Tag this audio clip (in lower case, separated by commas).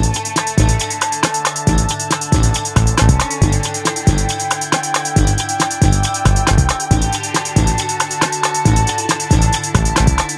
music, electronic music